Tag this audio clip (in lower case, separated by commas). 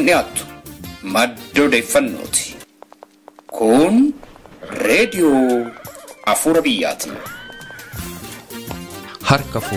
music, speech